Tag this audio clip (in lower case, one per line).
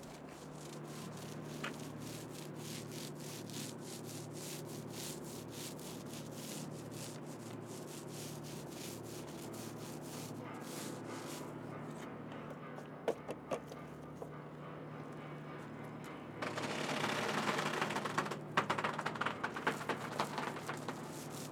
water vehicle
vehicle